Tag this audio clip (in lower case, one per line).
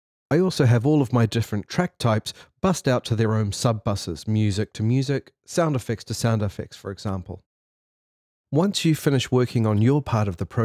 speech